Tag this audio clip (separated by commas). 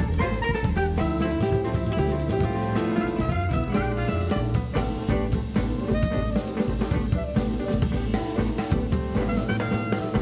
Music of Latin America, Percussion, Musical instrument, Jazz, playing drum kit, Drum kit, Music